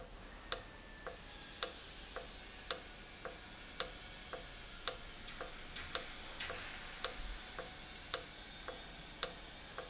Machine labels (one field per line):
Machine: valve